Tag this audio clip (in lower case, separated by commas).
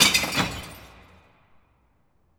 shatter, crushing, glass